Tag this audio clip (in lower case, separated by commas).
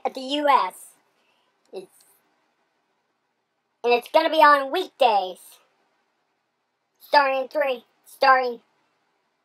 speech